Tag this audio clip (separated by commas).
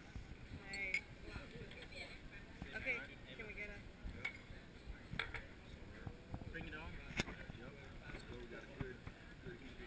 Speech